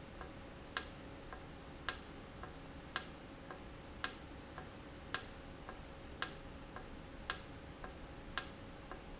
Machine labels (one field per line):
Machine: valve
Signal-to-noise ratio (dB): 6 dB